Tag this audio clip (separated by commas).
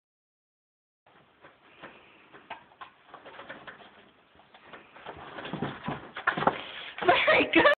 Speech